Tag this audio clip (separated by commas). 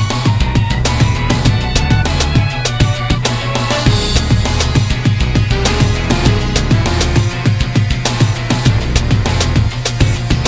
Music